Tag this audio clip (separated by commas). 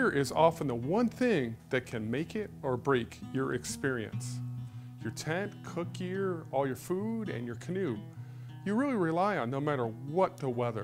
Speech, Music